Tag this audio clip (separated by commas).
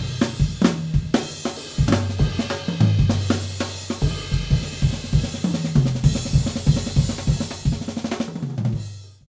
Rimshot, Drum, Drum kit, Percussion, Drum roll, Bass drum, Snare drum